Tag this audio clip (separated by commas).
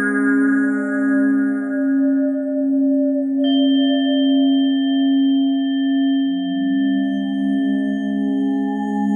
Singing bowl